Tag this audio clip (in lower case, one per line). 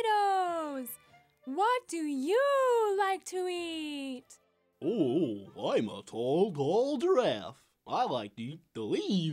speech